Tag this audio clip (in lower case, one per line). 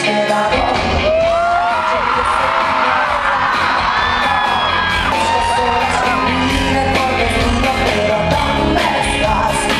music